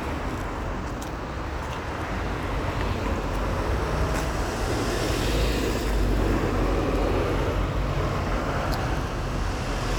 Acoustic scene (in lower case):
street